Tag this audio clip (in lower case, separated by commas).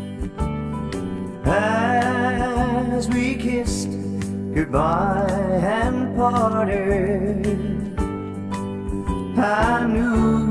music